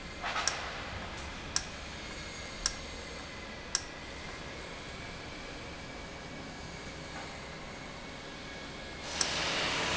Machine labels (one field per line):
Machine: valve